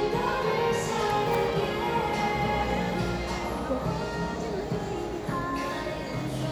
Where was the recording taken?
in a cafe